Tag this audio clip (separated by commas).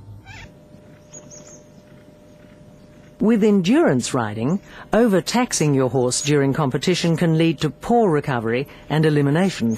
Horse, Speech, Animal